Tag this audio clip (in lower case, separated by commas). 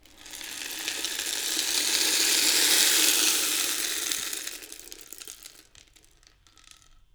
music, percussion, musical instrument, rattle (instrument)